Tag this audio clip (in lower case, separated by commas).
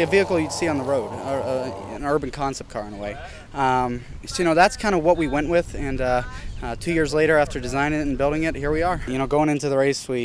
car passing by, speech